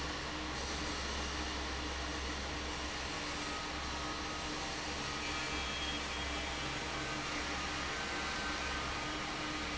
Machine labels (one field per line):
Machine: fan